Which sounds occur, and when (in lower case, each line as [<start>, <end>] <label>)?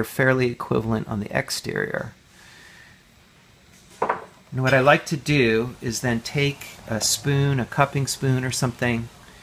[0.00, 9.42] background noise
[4.33, 4.53] cutlery
[6.90, 9.08] male speech